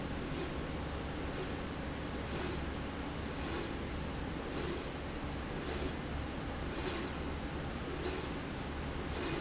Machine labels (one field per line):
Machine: slide rail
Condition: normal